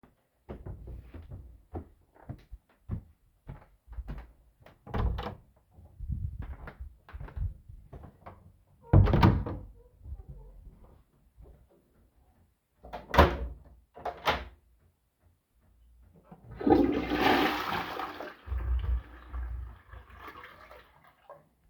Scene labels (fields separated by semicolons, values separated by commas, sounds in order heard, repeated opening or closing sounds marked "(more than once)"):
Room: bedroom, hallway, lavatory; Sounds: footsteps, door (more than once), toilet flushing